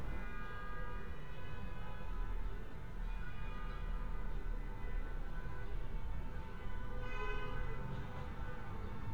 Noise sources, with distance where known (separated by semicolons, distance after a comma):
car horn, far